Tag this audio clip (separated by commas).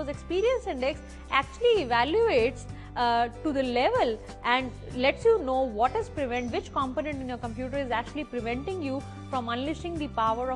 Music, Speech